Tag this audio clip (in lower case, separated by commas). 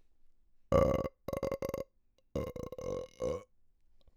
burping